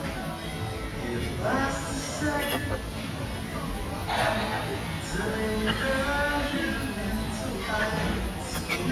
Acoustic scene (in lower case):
restaurant